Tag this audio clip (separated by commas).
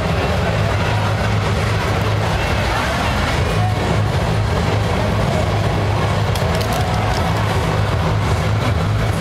Music